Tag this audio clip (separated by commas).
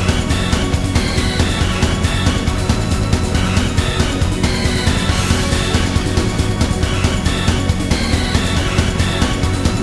Music